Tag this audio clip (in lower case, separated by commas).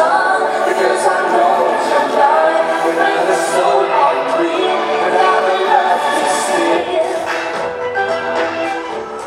music